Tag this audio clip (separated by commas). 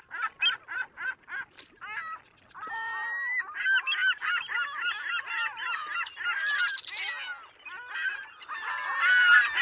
outside, rural or natural